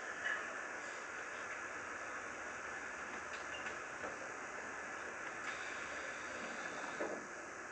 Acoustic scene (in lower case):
subway train